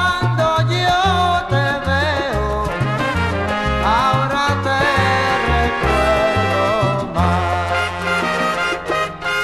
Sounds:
music, orchestra, sound effect

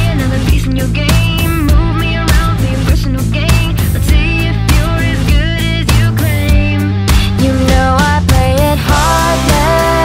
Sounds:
pop music, music

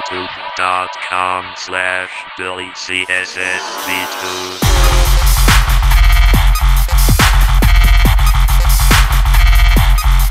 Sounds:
dubstep, music, speech, electronic music

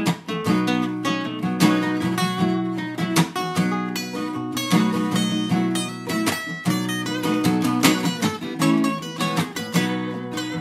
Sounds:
plucked string instrument, musical instrument, acoustic guitar, guitar, strum, music

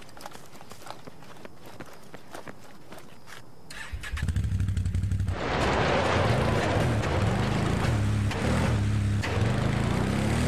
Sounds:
walk

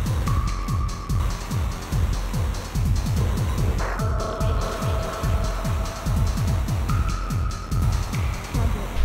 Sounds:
music, disco

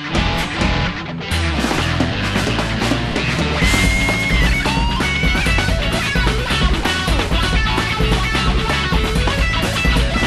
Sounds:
music

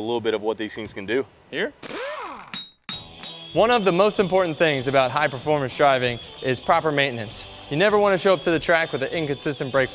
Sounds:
inside a large room or hall, music, speech

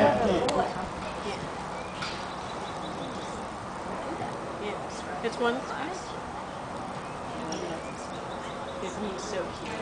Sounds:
speech

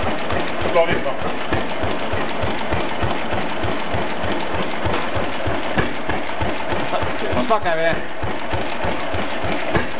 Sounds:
heavy engine (low frequency)

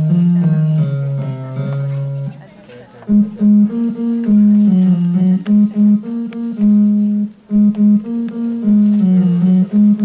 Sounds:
music, harpsichord, speech

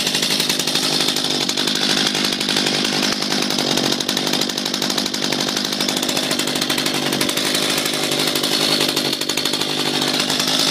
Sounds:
chainsaw, chainsawing trees

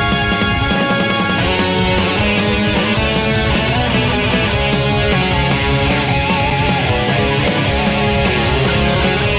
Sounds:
music

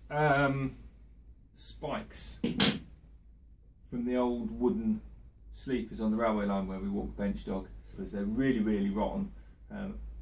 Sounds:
speech

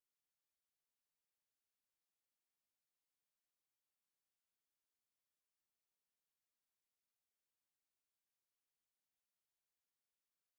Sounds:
chimpanzee pant-hooting

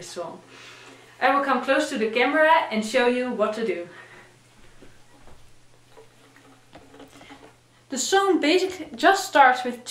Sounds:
speech

